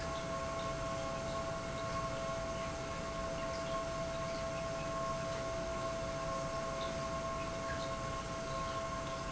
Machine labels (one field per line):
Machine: pump